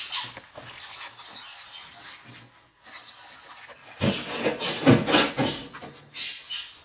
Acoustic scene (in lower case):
kitchen